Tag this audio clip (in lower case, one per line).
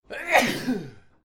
sneeze
respiratory sounds